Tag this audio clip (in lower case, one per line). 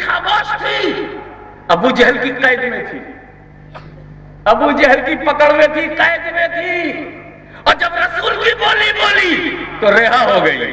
speech
man speaking